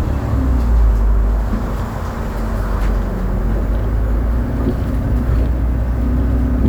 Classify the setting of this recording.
bus